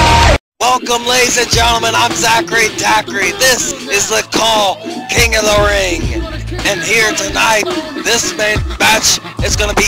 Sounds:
music, speech

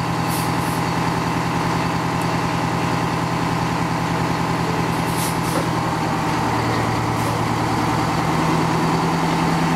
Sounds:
vehicle, motor vehicle (road)

